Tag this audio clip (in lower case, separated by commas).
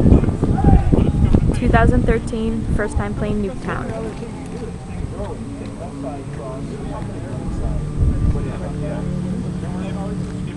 music, speech